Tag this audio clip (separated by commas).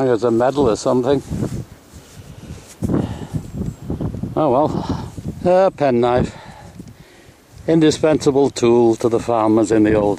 Speech